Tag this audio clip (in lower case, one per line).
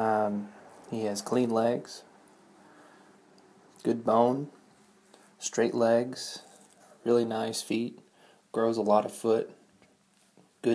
speech